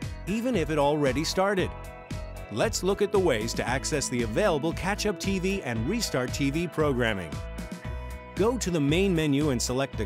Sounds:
music
speech

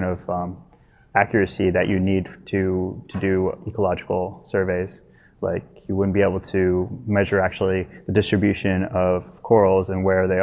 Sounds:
speech

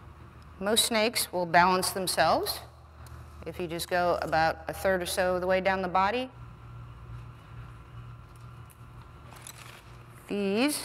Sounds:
speech
inside a large room or hall

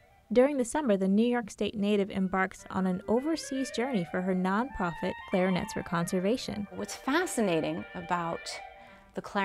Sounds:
independent music
speech
music

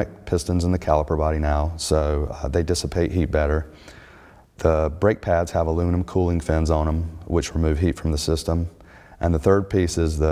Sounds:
speech

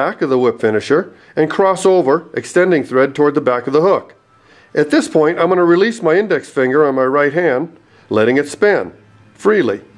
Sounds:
speech

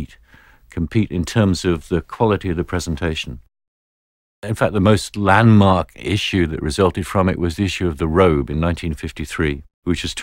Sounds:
speech

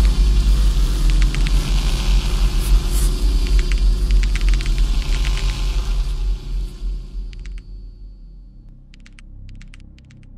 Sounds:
music
inside a large room or hall

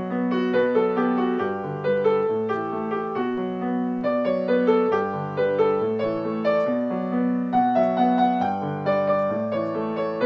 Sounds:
keyboard (musical)
piano

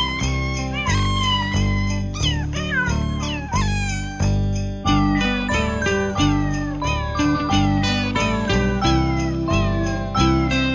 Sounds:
music

